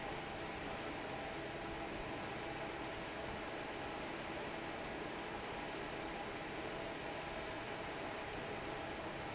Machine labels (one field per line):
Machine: fan